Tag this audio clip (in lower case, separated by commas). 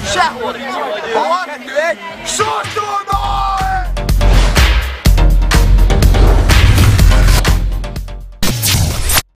speech, music